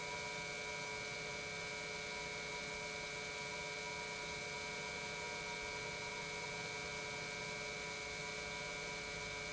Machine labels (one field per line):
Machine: pump